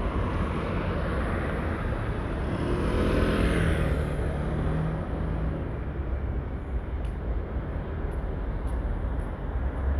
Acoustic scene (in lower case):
street